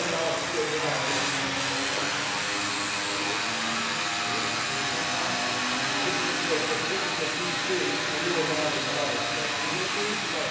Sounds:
speech
inside a large room or hall

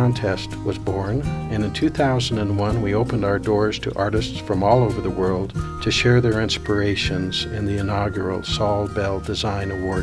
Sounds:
music
speech

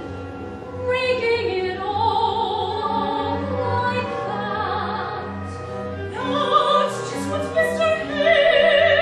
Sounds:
classical music
opera
music

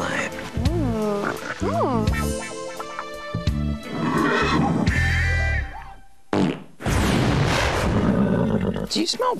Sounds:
horse neighing

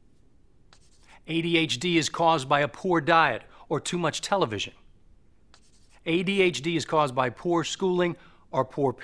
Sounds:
speech

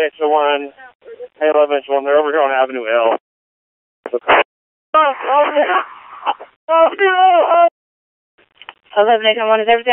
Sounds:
police radio chatter

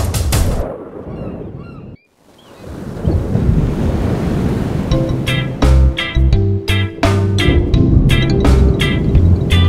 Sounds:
music

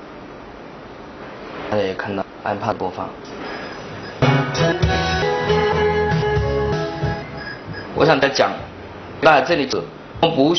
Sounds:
speech
music

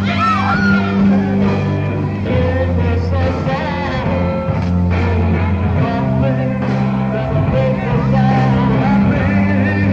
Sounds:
guitar
music
psychedelic rock

